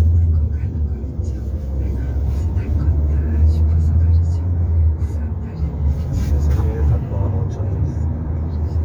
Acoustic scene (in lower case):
car